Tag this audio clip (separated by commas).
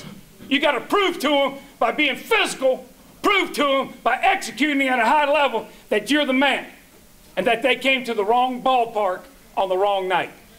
Speech